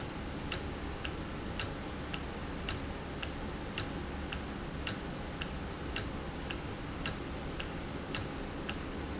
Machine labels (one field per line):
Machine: valve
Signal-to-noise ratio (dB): -6 dB